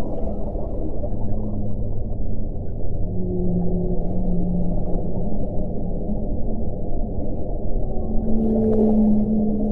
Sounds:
Whale vocalization

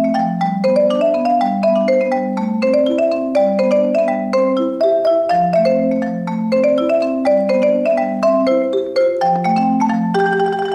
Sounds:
Music, Percussion

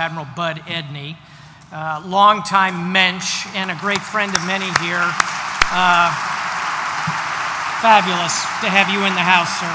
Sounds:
man speaking, Speech, monologue

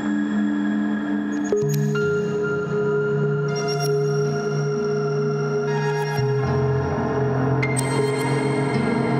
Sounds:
Speech

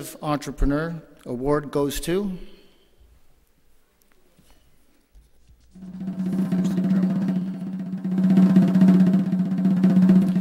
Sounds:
Drum roll, Percussion, Drum

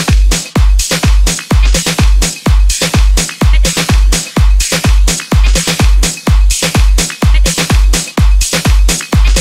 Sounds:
Music, Pop music, Background music

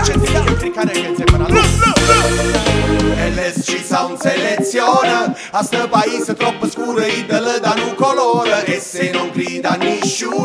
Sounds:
Music

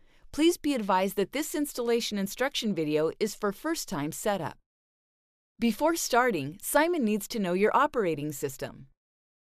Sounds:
Speech

